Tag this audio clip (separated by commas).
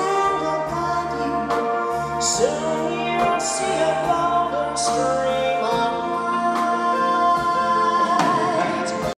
Music